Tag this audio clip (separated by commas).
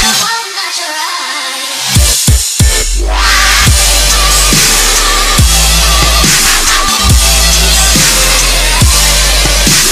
Dubstep, Music